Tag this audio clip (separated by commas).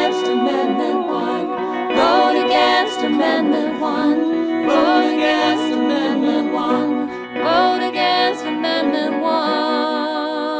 Music, inside a small room